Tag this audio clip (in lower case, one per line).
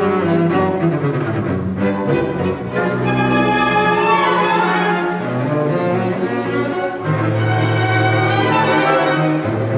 playing double bass